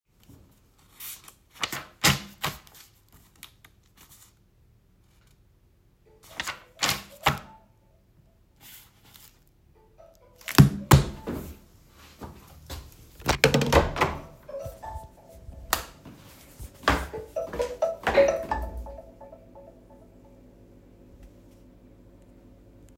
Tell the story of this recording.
I was reading a book when an alarm on my phone rigned in another room. I stood up, took my phone with myself, opened the door, turned the lights on and then walked towards the phone, turning the alarm off.